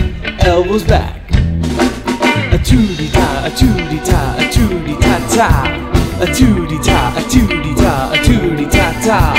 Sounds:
Music

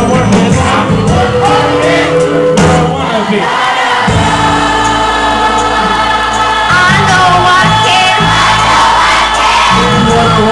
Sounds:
Music

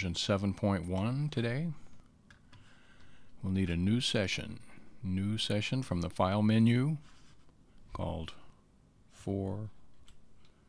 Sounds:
Speech

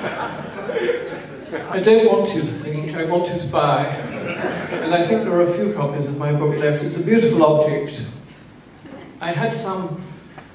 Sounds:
Male speech

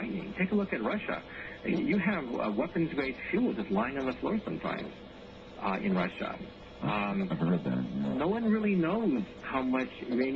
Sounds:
Speech

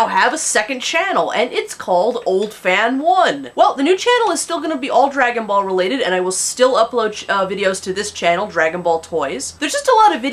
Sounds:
Speech

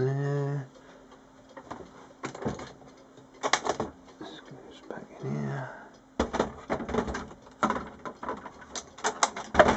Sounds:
Speech, Printer

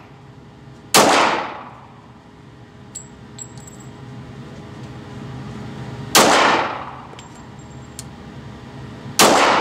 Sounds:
Gunshot

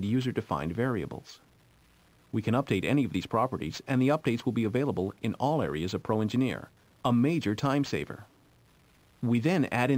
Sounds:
Speech

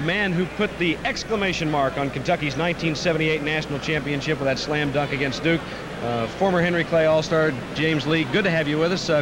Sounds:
Speech

